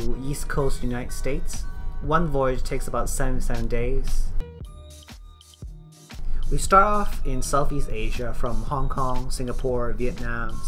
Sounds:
music
speech

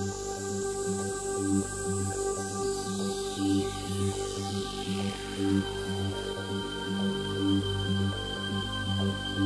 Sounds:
electronic music
music
soundtrack music

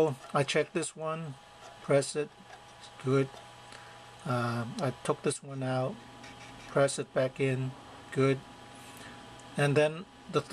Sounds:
inside a small room
speech

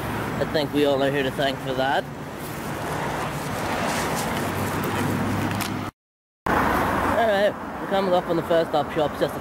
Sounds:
speech

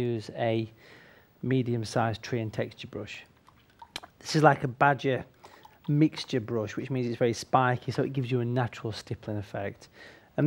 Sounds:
speech

